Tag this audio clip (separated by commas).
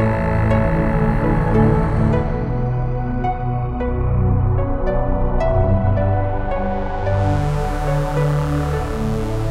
Soundtrack music, Tender music, Music